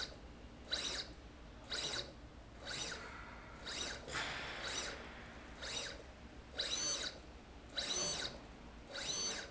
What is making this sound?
slide rail